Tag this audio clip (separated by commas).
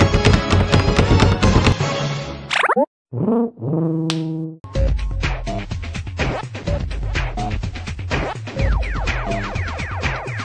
Music